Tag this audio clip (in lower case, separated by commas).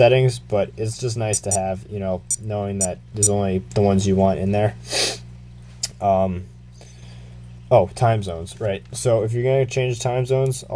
inside a small room, speech